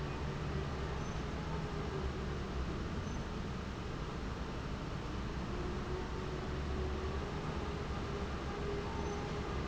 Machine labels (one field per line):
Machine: fan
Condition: abnormal